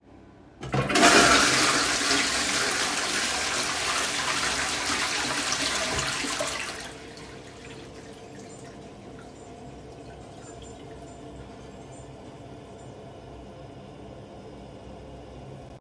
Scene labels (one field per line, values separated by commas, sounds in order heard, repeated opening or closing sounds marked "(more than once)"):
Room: lavatory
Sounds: toilet flushing, running water